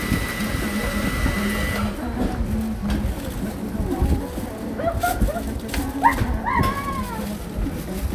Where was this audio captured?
in a cafe